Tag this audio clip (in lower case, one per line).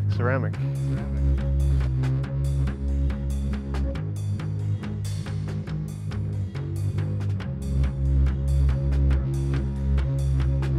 music
speech